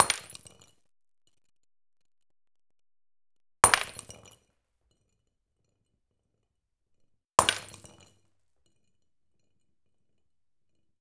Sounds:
glass, shatter

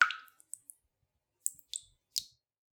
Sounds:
water, rain, raindrop

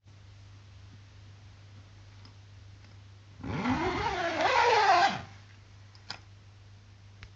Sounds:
domestic sounds, zipper (clothing)

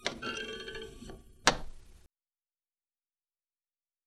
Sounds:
thump

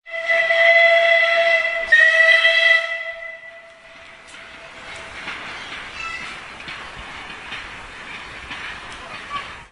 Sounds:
vehicle, train, rail transport

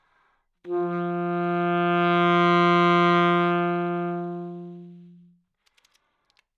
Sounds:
musical instrument, wind instrument, music

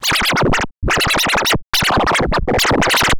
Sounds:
scratching (performance technique), musical instrument, music

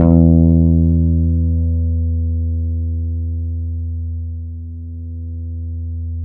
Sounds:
plucked string instrument, guitar, musical instrument, bass guitar, music

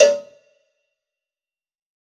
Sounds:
cowbell, bell

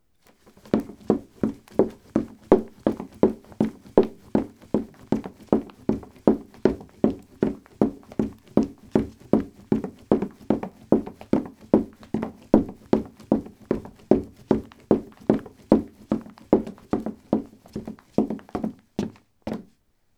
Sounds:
walk, run

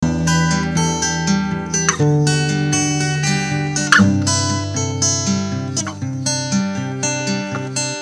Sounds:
music, plucked string instrument, musical instrument, guitar, acoustic guitar

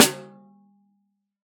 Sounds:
percussion, musical instrument, music, drum, snare drum

